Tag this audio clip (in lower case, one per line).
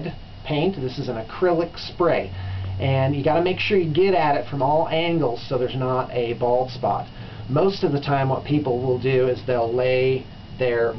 speech